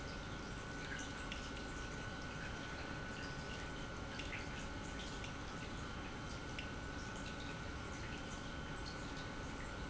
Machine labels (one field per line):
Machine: pump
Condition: normal